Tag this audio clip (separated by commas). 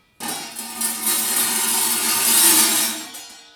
Tools